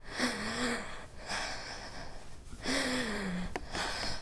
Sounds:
Breathing, Respiratory sounds

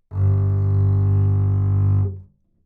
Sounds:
Music, Bowed string instrument, Musical instrument

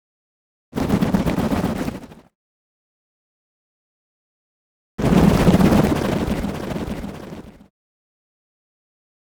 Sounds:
Wild animals, Bird, Animal

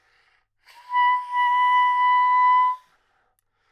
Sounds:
Musical instrument, Music, woodwind instrument

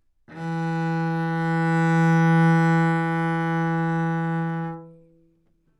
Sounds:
Musical instrument, Bowed string instrument, Music

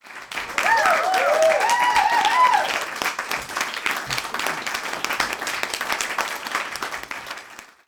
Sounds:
Human group actions, Applause, Cheering

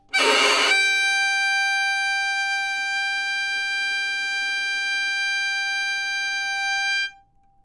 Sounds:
Musical instrument, Music, Bowed string instrument

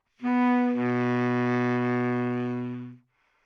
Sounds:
Wind instrument, Musical instrument, Music

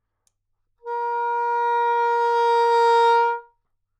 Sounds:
Musical instrument, Music, Wind instrument

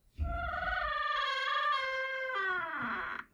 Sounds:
home sounds, Door

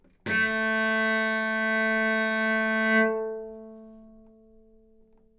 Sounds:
Musical instrument, Bowed string instrument, Music

